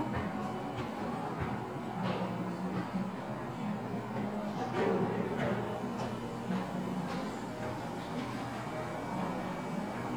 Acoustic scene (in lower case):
cafe